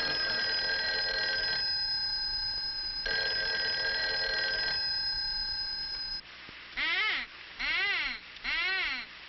Phone ringing followed by a squaring noise